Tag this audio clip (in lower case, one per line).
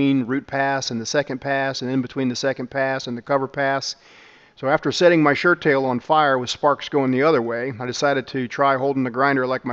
arc welding